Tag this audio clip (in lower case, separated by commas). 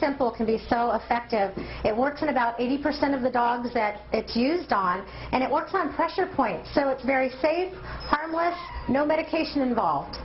whimper (dog), domestic animals, speech